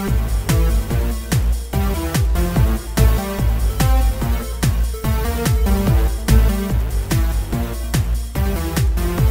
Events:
[0.00, 9.30] music

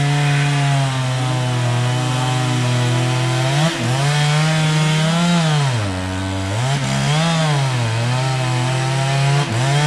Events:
[0.00, 9.85] chainsaw

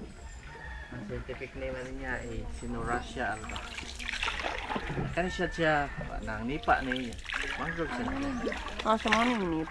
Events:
[0.00, 1.13] rooster
[0.00, 9.70] canoe
[0.00, 9.70] stream
[0.13, 0.48] bird vocalization
[0.88, 2.41] man speaking
[0.90, 9.70] conversation
[1.68, 2.31] bird vocalization
[2.30, 4.02] human voice
[2.47, 3.60] bird vocalization
[2.57, 3.47] man speaking
[4.88, 6.11] rooster
[5.14, 5.82] man speaking
[5.16, 6.34] bird vocalization
[5.98, 7.18] man speaking
[5.98, 6.97] human voice
[7.30, 8.10] rooster
[7.58, 8.08] man speaking
[7.80, 8.51] bird vocalization
[7.90, 8.58] human voice
[8.80, 9.70] female speech

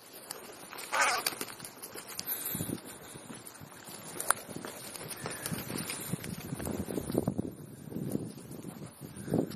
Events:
[0.00, 9.55] wind
[0.24, 0.30] tick
[0.86, 1.18] crow
[1.19, 1.27] tick
[1.36, 1.56] generic impact sounds
[1.83, 1.98] generic impact sounds
[2.13, 2.19] tick
[2.21, 2.75] crow
[2.23, 2.67] surface contact
[2.46, 2.81] wind noise (microphone)
[3.83, 4.22] wind noise (microphone)
[4.24, 4.34] tick
[4.36, 4.68] wind noise (microphone)
[4.58, 4.70] generic impact sounds
[4.87, 4.97] tick
[5.09, 5.26] generic impact sounds
[5.10, 5.62] crow
[5.38, 9.55] wind noise (microphone)
[5.40, 5.49] tick
[5.84, 6.00] tick
[6.15, 6.24] tick
[7.05, 7.15] tick
[9.09, 9.55] crow
[9.43, 9.54] surface contact

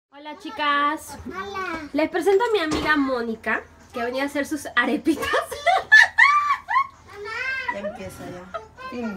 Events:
[0.07, 9.15] conversation
[0.08, 9.15] mechanisms
[6.84, 6.96] generic impact sounds
[7.61, 8.65] laughter
[8.51, 9.15] kid speaking
[8.87, 9.15] woman speaking

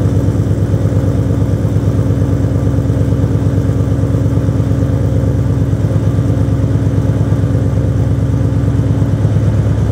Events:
[0.00, 9.91] car
[0.00, 9.91] idling

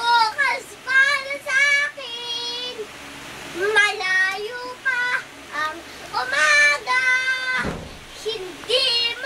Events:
[0.00, 0.59] child singing
[0.00, 9.25] mechanisms
[0.85, 2.83] child singing
[3.52, 5.23] child singing
[5.49, 5.80] child singing
[6.11, 7.64] child singing
[7.56, 7.83] generic impact sounds
[8.17, 9.25] child singing

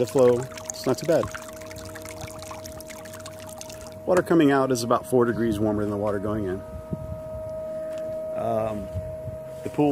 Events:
[0.00, 0.49] man speaking
[0.00, 3.94] pump (liquid)
[0.00, 9.91] mechanisms
[0.81, 1.29] man speaking
[3.68, 3.94] breathing
[4.05, 6.56] man speaking
[4.11, 4.23] generic impact sounds
[5.23, 5.48] bird song
[6.21, 6.54] bird song
[6.87, 7.21] wind noise (microphone)
[7.44, 7.51] clicking
[7.86, 8.01] generic impact sounds
[8.07, 8.13] clicking
[8.32, 8.87] man speaking
[8.53, 9.02] scrape
[8.87, 9.02] wind noise (microphone)
[9.18, 9.33] wind noise (microphone)
[9.46, 9.91] scrape
[9.59, 9.91] man speaking

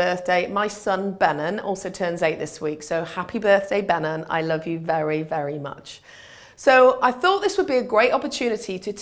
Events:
[0.00, 5.98] female speech
[0.00, 9.01] background noise
[5.98, 6.52] breathing
[6.57, 9.01] female speech

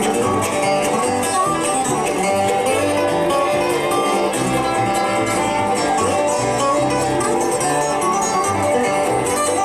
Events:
[0.00, 9.64] music

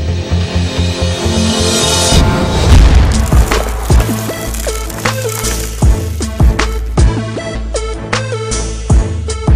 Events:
[0.00, 9.55] music
[2.53, 6.18] sound effect

